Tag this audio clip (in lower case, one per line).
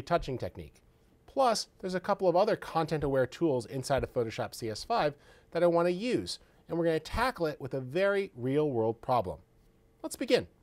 speech